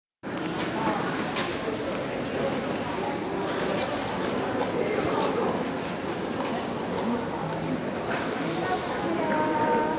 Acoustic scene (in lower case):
crowded indoor space